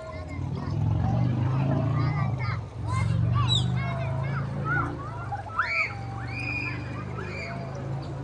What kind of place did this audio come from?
park